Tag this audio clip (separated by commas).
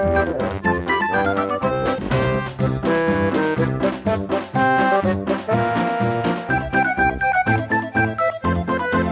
Music, Soundtrack music